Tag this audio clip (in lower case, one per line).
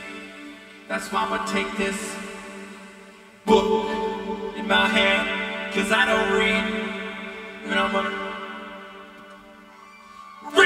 speech